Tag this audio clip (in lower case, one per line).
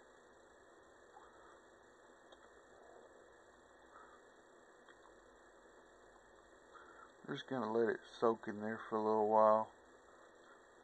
silence
speech